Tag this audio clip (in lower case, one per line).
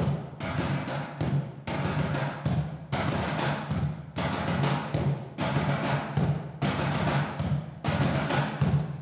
playing timpani